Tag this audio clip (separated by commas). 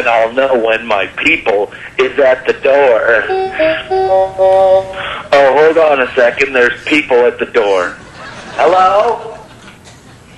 Speech, Music